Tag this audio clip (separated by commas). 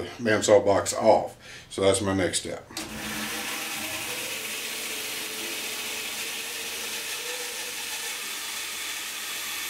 Wood, Sawing